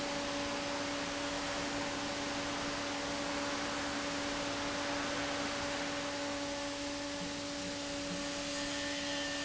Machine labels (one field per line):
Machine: fan